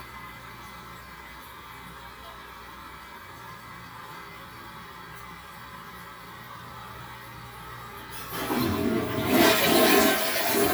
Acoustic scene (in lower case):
restroom